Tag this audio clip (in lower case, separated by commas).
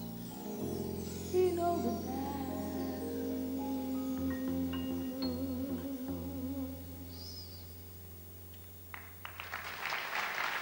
music, singing